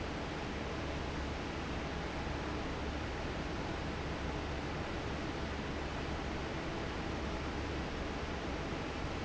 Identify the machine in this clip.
fan